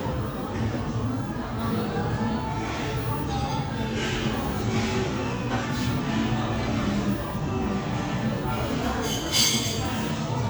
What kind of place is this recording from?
crowded indoor space